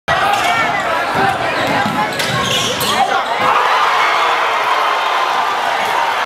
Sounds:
speech

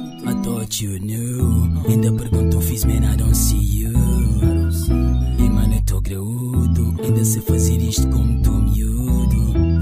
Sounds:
music

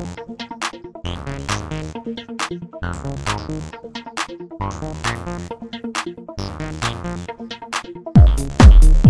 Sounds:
electronic music
techno
music

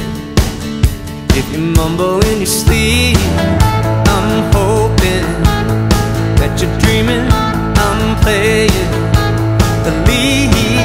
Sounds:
roll
music

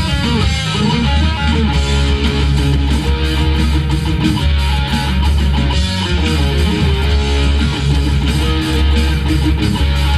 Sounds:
music

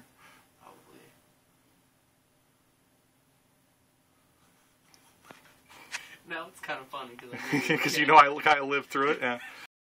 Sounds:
speech

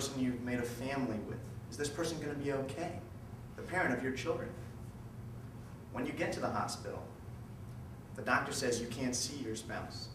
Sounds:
speech
man speaking
monologue

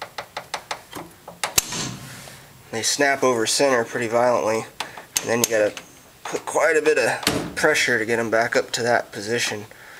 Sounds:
speech

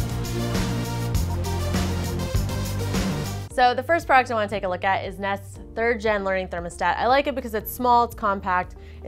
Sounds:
music
speech

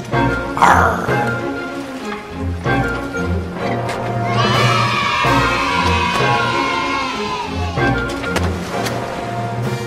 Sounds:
surf

